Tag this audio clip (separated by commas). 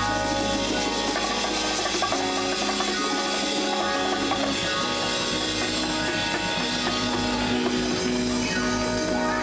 Speech, Music, Percussion, Jazz